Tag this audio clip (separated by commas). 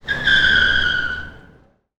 Car, Vehicle, Motor vehicle (road)